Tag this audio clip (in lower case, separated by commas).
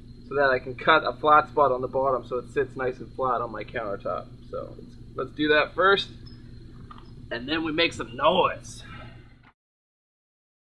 speech